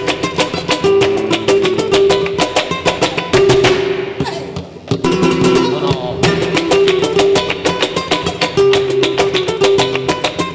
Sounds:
flamenco, music

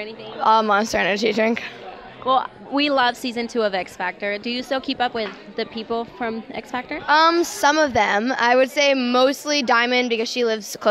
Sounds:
speech

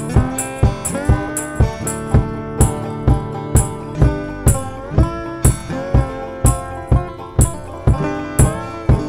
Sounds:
slide guitar

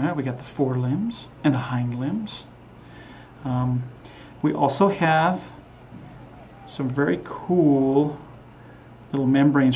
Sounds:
speech

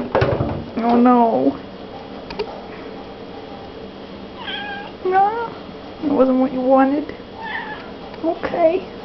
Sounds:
speech

